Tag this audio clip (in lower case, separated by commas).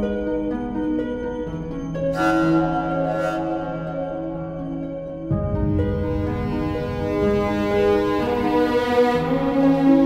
bowed string instrument, fiddle